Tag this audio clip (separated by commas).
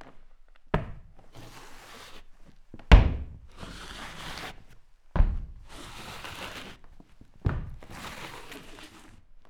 Walk